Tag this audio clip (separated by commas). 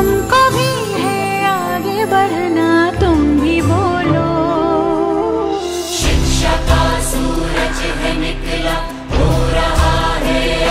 Tender music, Music